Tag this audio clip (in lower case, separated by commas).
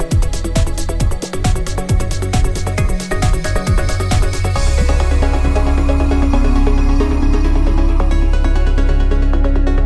exciting music, soundtrack music, music